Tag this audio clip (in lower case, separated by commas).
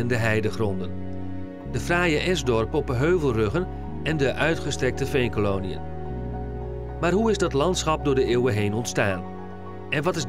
speech, music